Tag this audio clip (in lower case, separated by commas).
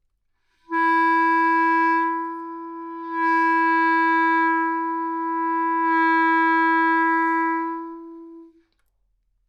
music, woodwind instrument, musical instrument